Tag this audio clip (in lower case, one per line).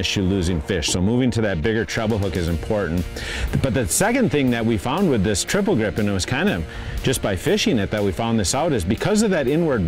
speech
music